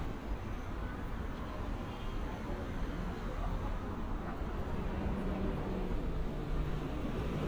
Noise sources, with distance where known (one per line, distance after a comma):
medium-sounding engine, far
car horn, far